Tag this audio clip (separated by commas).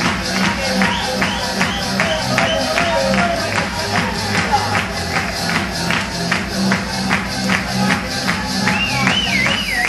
Speech, Music